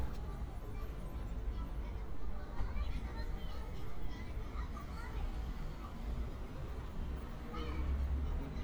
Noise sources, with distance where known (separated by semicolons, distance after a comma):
person or small group talking, far